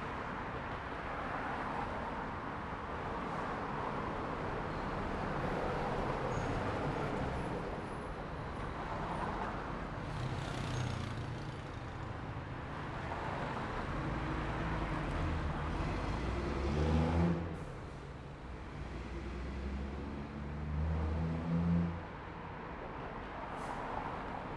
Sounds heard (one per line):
bus
car
motorcycle engine accelerating
motorcycle
car wheels rolling
bus engine accelerating
bus wheels rolling
bus compressor
bus brakes